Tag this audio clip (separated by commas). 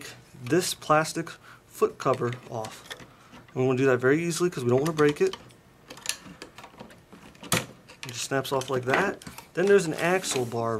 Speech